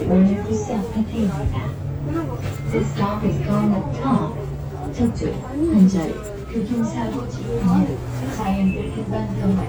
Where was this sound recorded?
on a bus